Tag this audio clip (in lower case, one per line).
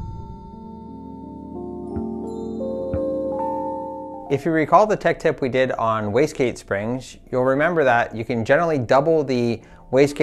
male speech
speech
music